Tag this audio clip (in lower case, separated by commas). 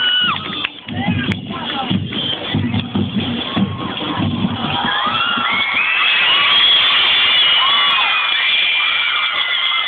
music, speech